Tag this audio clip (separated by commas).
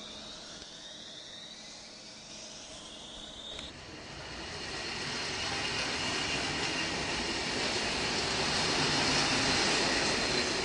Train, Railroad car, Vehicle, Rail transport